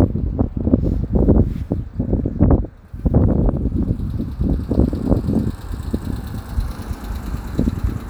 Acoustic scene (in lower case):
residential area